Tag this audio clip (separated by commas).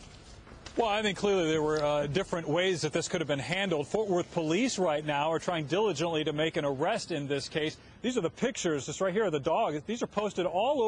Speech